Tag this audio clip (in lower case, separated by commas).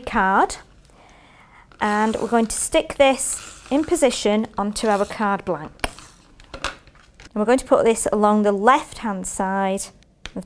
speech, inside a small room